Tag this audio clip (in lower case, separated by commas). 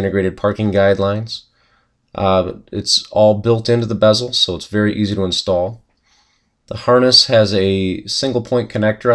speech